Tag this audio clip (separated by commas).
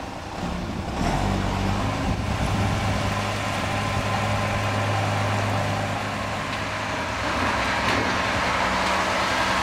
Engine, Heavy engine (low frequency), Vehicle, Truck